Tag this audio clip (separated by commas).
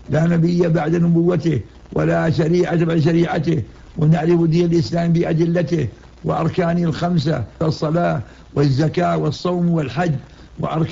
Speech